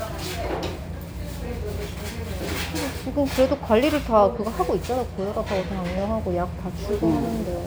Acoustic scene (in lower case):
restaurant